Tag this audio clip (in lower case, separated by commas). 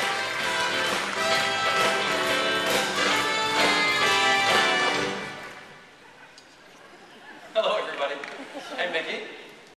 music, speech